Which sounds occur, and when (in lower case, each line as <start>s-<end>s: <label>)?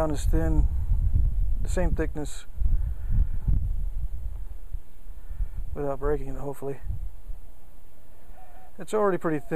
0.0s-0.6s: male speech
0.0s-2.3s: wind noise (microphone)
0.0s-9.5s: wind
1.6s-2.5s: male speech
2.6s-4.7s: wind noise (microphone)
2.6s-3.5s: breathing
5.1s-5.6s: breathing
5.3s-6.4s: wind noise (microphone)
5.7s-6.8s: male speech
6.7s-7.1s: wind noise (microphone)
8.2s-8.7s: breathing
8.7s-9.5s: male speech